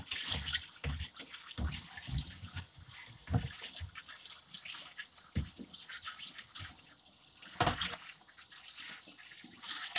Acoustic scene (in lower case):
kitchen